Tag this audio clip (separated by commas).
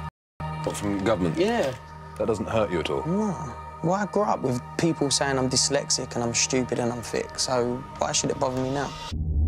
Speech, Music